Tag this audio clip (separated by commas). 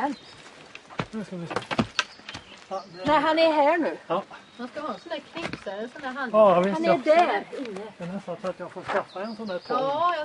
outside, rural or natural, Speech